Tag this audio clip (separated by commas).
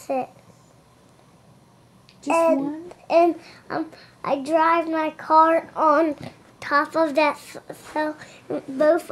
Speech